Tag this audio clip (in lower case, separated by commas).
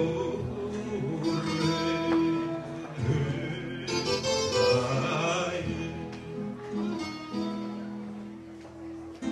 plucked string instrument, guitar, music, musical instrument